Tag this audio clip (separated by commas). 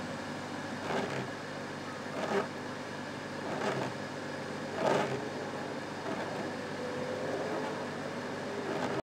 Vehicle